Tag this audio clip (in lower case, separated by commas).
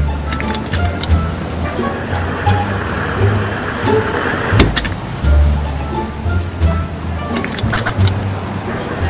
music